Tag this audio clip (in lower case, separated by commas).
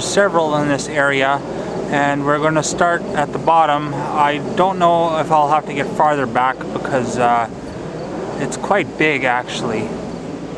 speech